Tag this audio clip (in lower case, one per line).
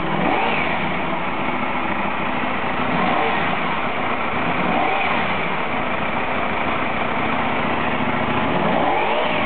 engine
medium engine (mid frequency)
vroom
vehicle